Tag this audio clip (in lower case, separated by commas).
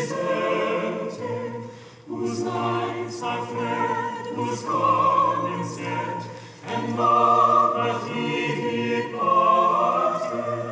opera, choir